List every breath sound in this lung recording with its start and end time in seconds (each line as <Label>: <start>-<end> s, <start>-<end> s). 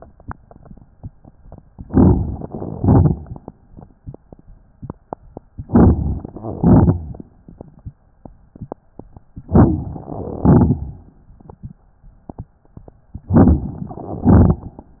Inhalation: 1.78-2.45 s, 5.60-6.34 s, 9.41-10.06 s, 13.32-14.02 s
Exhalation: 2.49-3.23 s, 6.41-7.16 s, 10.11-10.97 s, 14.08-14.97 s
Crackles: 1.76-2.43 s, 2.49-3.27 s, 5.60-6.34 s, 6.41-7.16 s, 9.41-10.06 s, 10.11-10.97 s, 13.32-14.02 s, 14.08-14.97 s